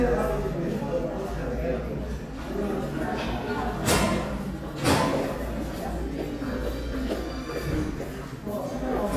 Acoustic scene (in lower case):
crowded indoor space